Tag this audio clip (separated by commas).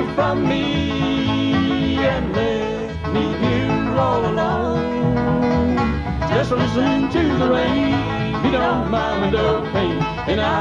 Country, Bluegrass, Music